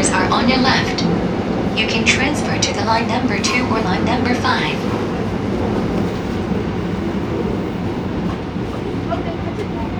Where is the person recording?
on a subway train